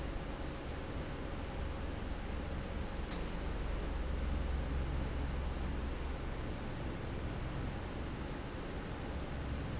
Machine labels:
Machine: fan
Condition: normal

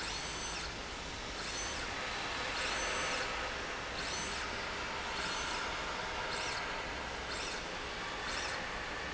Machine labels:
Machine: slide rail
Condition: normal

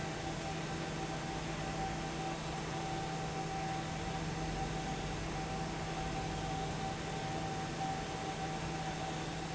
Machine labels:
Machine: fan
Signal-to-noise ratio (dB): -6 dB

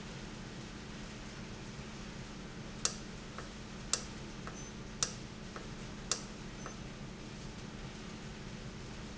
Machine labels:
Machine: valve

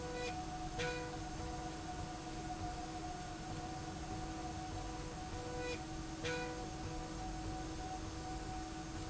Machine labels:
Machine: slide rail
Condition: normal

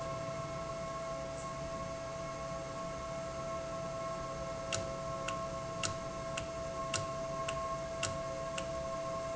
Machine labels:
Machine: valve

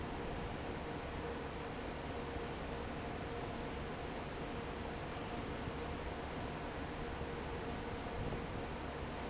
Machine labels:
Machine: fan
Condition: normal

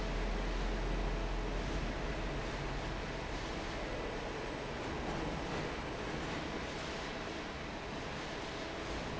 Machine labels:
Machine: fan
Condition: normal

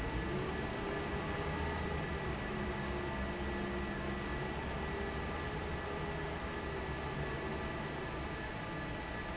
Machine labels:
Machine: fan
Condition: normal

